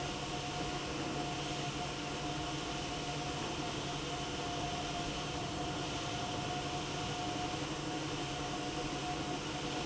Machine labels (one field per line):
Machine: pump